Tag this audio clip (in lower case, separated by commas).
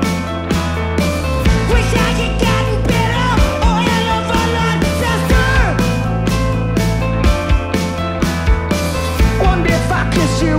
music, rhythm and blues